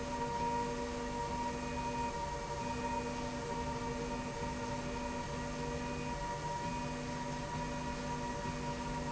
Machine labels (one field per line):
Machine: slide rail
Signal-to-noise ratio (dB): -6 dB